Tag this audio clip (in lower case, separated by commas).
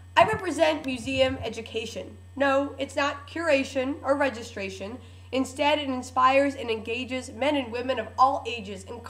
monologue, speech, woman speaking